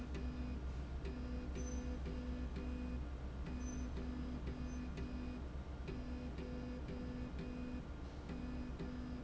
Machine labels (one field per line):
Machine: slide rail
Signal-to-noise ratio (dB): 0 dB